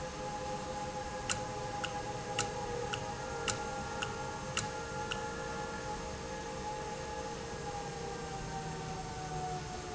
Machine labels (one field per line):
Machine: valve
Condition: normal